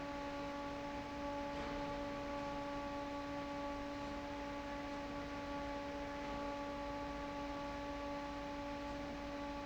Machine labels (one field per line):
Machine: fan